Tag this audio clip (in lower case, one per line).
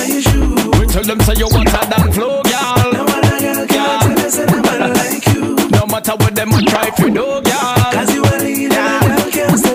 music